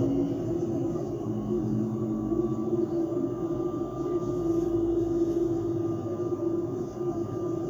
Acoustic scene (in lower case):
bus